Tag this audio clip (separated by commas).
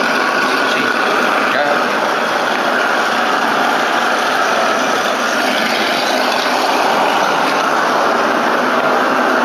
Speech